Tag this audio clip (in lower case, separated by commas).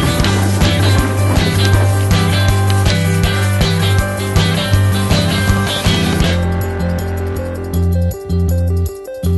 music